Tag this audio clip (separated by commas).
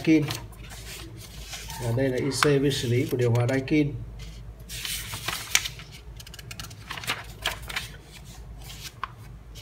Speech